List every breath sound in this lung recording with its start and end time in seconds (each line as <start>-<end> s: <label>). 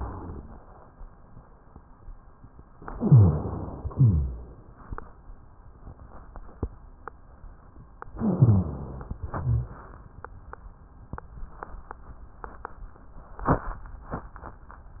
0.00-0.57 s: rhonchi
2.94-3.93 s: inhalation
2.94-3.93 s: rhonchi
3.95-4.73 s: exhalation
3.95-4.73 s: rhonchi
8.18-9.17 s: inhalation
8.18-9.17 s: rhonchi
9.22-9.94 s: exhalation
9.22-9.94 s: rhonchi